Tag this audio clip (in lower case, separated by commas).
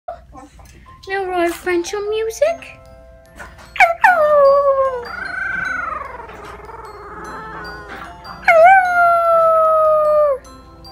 speech, animal, music, dog, domestic animals